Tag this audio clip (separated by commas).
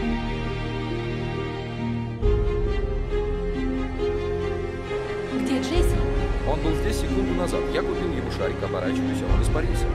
Speech, Music